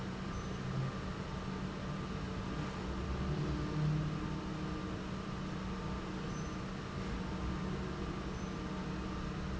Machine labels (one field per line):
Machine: pump